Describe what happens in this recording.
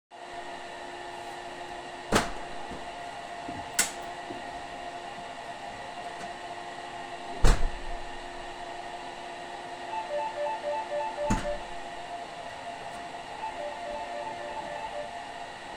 While the vacuum cleaner is running in a different room, the door gets opened and closed. A bell rings, door opens again, bell rings again.